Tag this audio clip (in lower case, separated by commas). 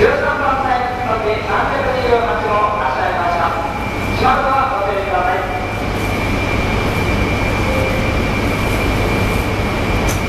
train, vehicle, outside, urban or man-made, speech